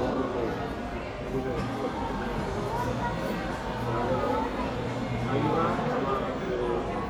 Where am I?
in a crowded indoor space